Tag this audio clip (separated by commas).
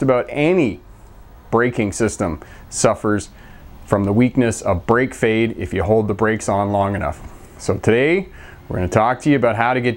Speech